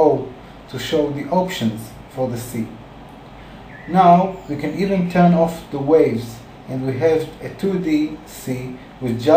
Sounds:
Speech

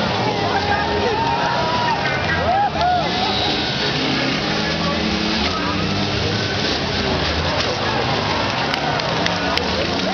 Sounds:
Car, Motor vehicle (road), Speech, Vehicle, Skidding

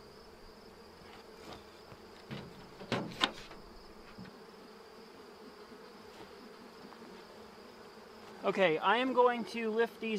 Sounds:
Insect, Speech, bee or wasp

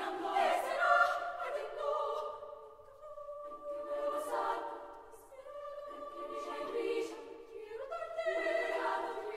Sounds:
singing choir

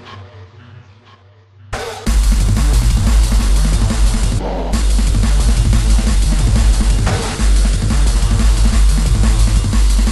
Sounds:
Drum kit, Bass drum, Music, Drum, Musical instrument

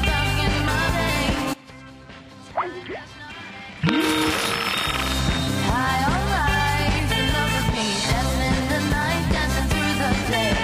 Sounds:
Music

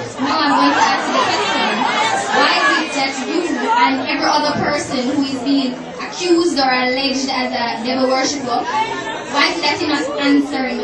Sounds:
inside a large room or hall, Speech, inside a public space

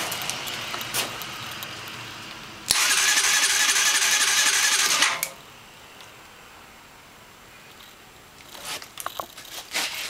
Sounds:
inside a small room, Vehicle, Motorcycle

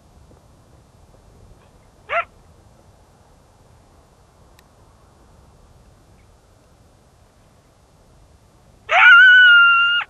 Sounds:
coyote howling

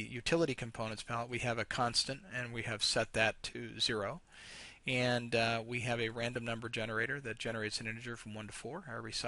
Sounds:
Speech

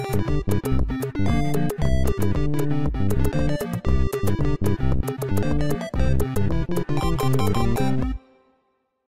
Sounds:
Theme music, Music

